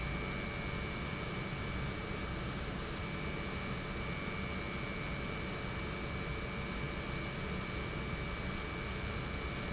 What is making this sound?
pump